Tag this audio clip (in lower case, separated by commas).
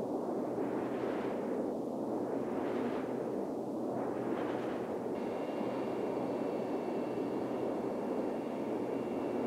wind noise, wind noise (microphone)